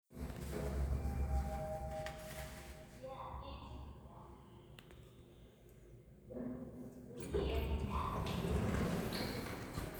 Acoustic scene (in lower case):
elevator